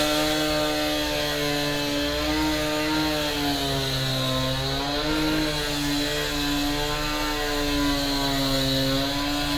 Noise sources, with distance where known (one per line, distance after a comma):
chainsaw